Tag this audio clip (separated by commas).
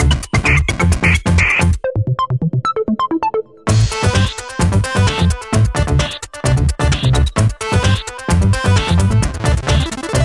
Soundtrack music, Blues, Funk, Music